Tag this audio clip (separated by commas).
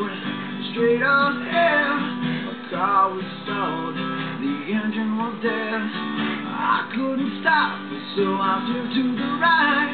Music, Acoustic guitar, Guitar, Musical instrument